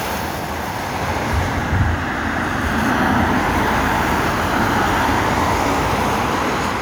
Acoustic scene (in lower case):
street